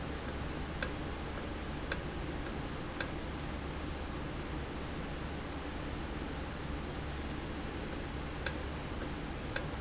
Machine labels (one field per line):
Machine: valve